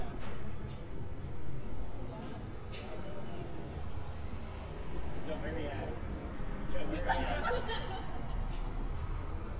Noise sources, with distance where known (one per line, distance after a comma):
unidentified alert signal
person or small group talking, near